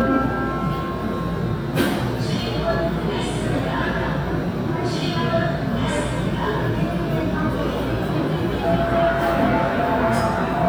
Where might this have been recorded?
in a subway station